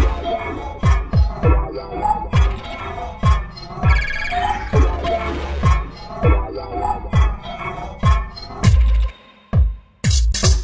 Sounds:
Soundtrack music, Music

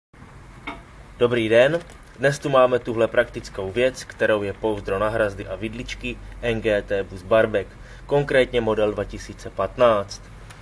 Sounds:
Speech

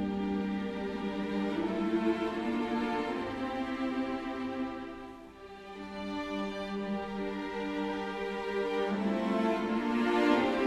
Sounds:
Music

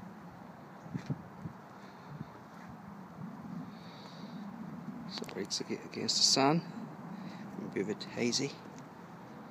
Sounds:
Speech

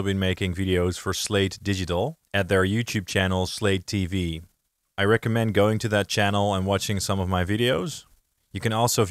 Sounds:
Speech

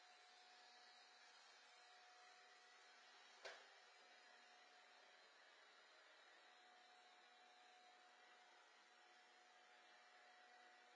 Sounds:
vacuum cleaner cleaning floors

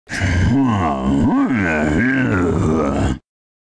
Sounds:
Sound effect

